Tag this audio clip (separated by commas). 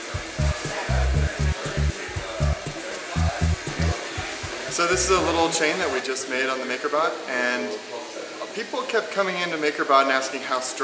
Speech, Music